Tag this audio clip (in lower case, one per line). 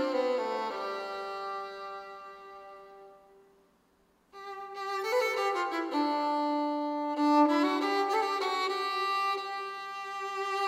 music